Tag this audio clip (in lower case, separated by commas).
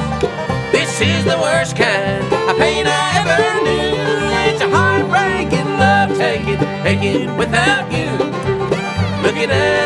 bluegrass, country, banjo, music